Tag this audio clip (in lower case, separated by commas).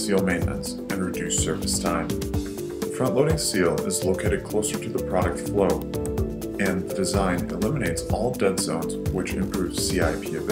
music, speech